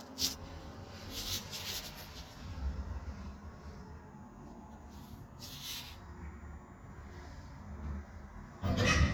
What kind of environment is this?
elevator